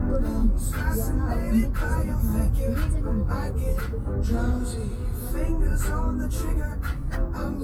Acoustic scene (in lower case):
car